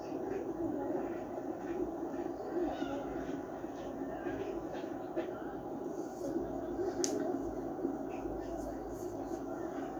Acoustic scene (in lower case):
park